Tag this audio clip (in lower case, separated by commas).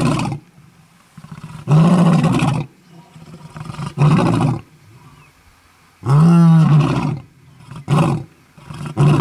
lions roaring